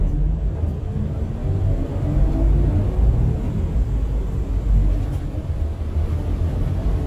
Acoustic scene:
bus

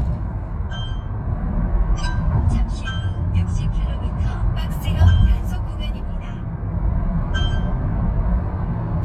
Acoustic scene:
car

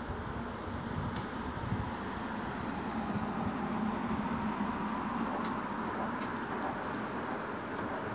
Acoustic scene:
street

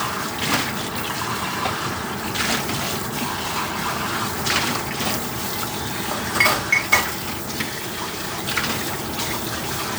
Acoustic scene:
kitchen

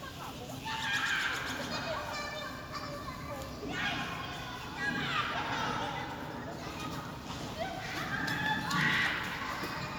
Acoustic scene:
park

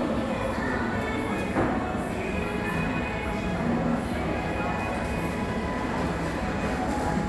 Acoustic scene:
cafe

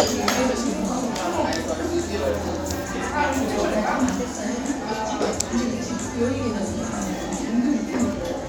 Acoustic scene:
restaurant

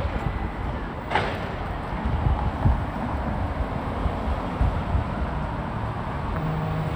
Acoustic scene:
street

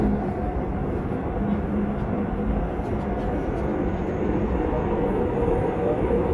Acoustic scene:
subway train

